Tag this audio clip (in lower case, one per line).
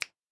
hands
finger snapping